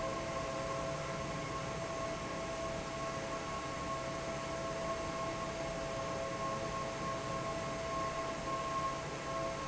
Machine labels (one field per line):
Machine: fan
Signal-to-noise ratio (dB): -6 dB